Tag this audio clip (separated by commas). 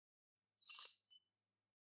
Keys jangling, Rattle, home sounds